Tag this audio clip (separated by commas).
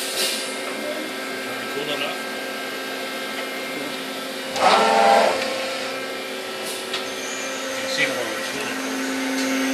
Speech